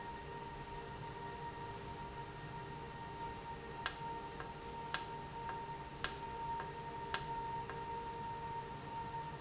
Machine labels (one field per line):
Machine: valve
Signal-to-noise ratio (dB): 0 dB